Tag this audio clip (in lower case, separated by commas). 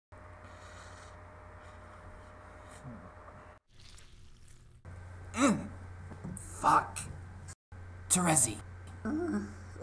monologue